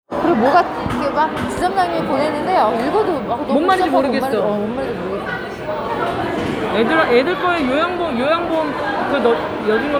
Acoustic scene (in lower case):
crowded indoor space